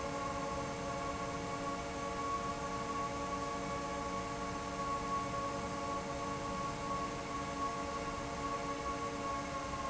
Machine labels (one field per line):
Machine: fan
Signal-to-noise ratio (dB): -6 dB